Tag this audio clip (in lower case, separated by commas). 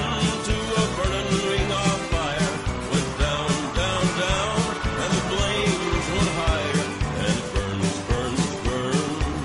music, musical instrument, guitar, electric guitar